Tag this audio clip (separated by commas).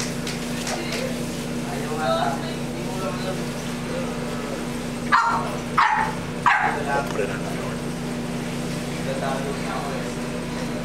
Speech, Domestic animals, Dog, Bark, Animal